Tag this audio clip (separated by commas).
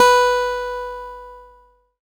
Music, Plucked string instrument, Guitar, Musical instrument, Acoustic guitar